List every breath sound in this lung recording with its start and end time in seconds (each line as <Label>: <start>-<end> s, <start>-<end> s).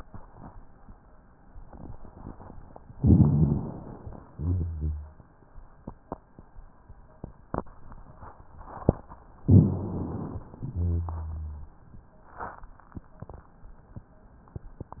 Inhalation: 2.96-4.15 s, 9.43-10.54 s
Exhalation: 4.23-5.18 s, 10.66-11.77 s
Rhonchi: 2.92-4.03 s, 4.23-5.18 s, 9.43-10.54 s, 10.66-11.77 s